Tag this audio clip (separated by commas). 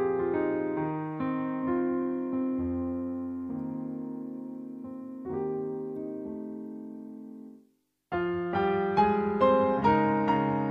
Piano, Electric piano, Musical instrument, Music, Keyboard (musical)